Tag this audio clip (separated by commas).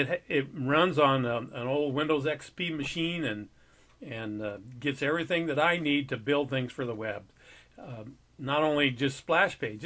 Speech